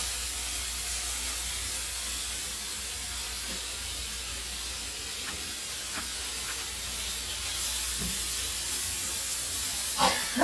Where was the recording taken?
in a kitchen